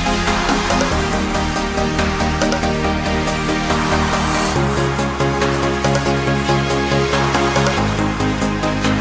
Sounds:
music

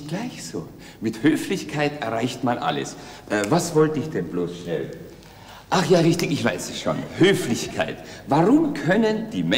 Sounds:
speech

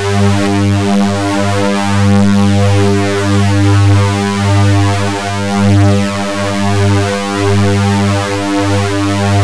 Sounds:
sampler

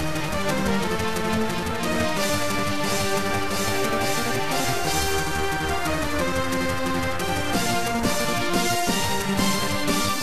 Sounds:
music

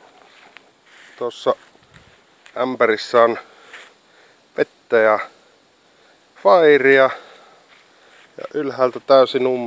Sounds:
speech

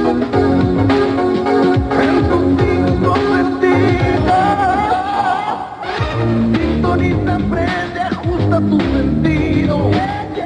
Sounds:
music, jingle (music)

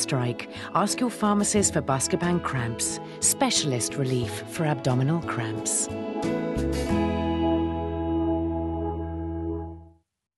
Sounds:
music, speech

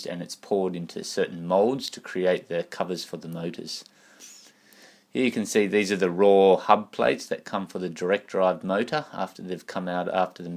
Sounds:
speech

